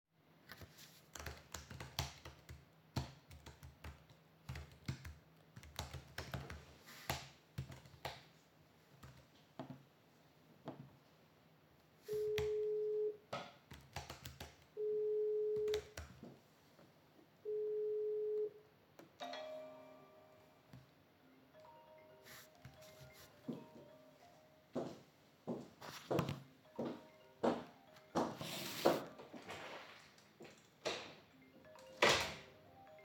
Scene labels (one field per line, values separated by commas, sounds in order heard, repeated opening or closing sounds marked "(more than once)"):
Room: office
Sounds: keyboard typing, phone ringing, footsteps, door